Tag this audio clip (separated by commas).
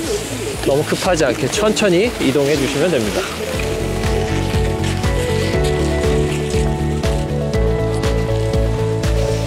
skiing